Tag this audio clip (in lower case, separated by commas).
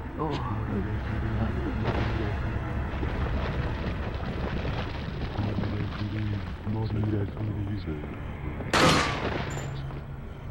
gunshot, music, speech